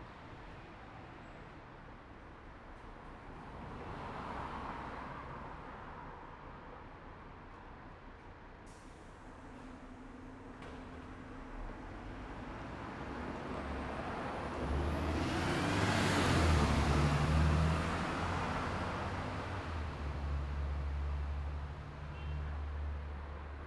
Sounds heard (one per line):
bus
car
car wheels rolling
bus compressor
bus engine accelerating
unclassified sound
bus engine idling
bus brakes
bus wheels rolling